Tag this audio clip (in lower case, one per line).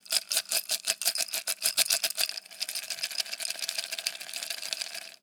rattle